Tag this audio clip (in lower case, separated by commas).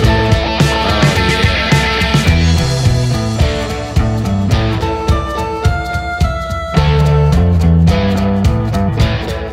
grunge